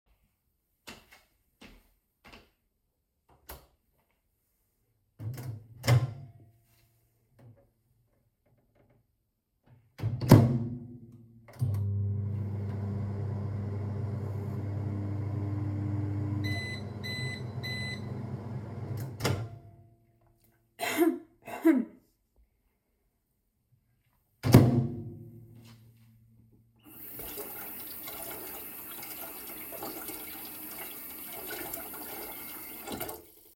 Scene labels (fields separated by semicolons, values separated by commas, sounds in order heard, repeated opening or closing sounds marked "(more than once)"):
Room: kitchen; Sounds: footsteps, light switch, microwave, running water